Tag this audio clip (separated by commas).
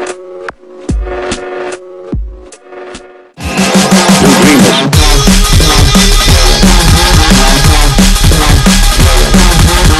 Music